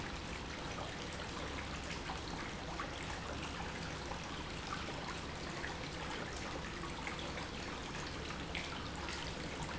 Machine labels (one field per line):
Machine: pump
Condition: normal